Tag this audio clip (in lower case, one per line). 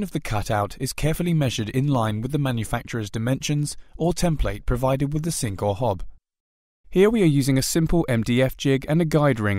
speech